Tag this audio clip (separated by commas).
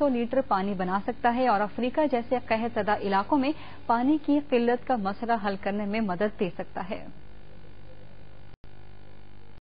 Speech